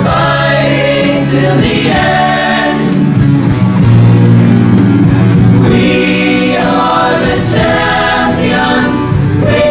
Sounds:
music
choir

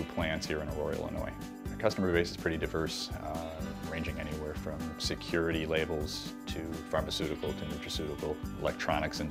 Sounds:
speech
music

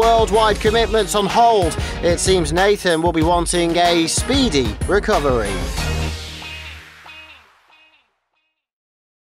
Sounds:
music
speech

